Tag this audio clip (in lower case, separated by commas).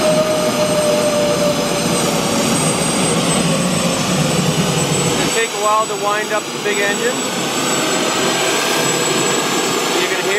speech, jet engine